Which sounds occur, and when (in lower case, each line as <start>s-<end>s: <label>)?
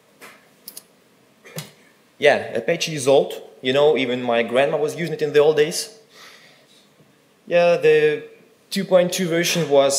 0.0s-9.9s: mechanisms
0.2s-0.4s: generic impact sounds
0.6s-0.9s: clicking
1.4s-1.7s: generic impact sounds
2.2s-3.5s: man speaking
3.7s-6.0s: man speaking
6.1s-6.9s: breathing
7.0s-7.1s: generic impact sounds
7.5s-8.3s: man speaking
8.7s-9.9s: man speaking